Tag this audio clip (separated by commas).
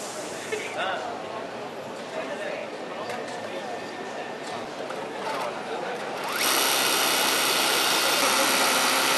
Speech, Sewing machine, using sewing machines